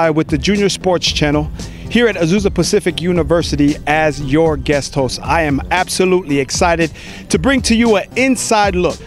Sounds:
Music, Speech

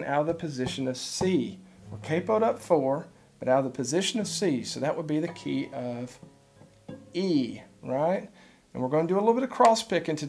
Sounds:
Speech

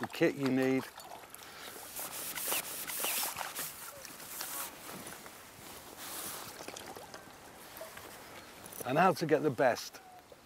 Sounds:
Speech

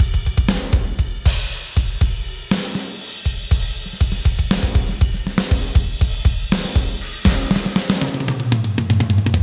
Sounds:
Musical instrument, Drum, Music, Bass drum, Drum kit

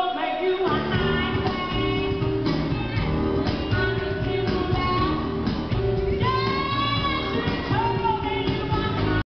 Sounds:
Speech, Music

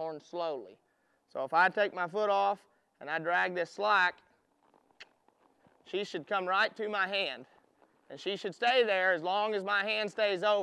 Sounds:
Speech

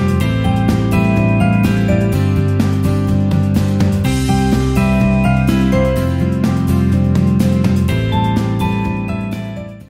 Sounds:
Music

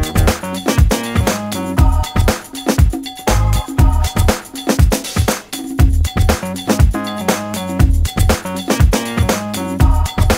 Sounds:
Music

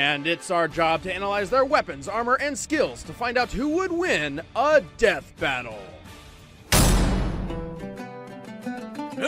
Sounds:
Music, Speech

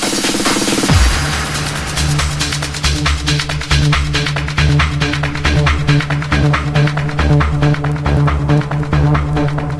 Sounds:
Trance music, Music

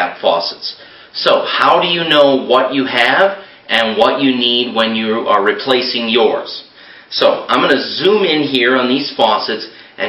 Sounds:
Speech

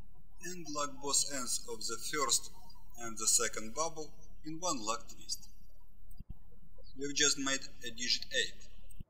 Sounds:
Speech

